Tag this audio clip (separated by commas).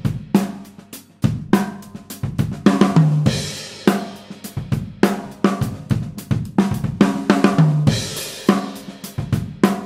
Hi-hat, Cymbal, Music, Snare drum, playing snare drum